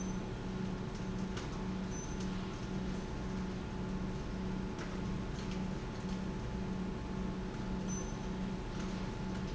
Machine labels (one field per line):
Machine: pump